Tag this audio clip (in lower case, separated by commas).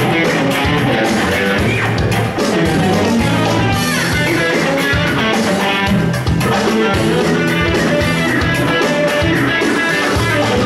guitar, musical instrument, music, plucked string instrument